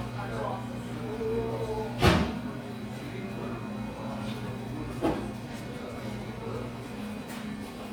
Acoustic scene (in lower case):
crowded indoor space